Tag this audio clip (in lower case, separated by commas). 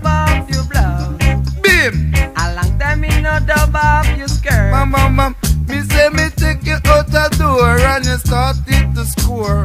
music, reggae